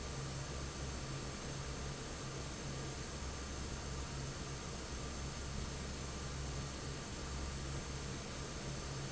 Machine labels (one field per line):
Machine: fan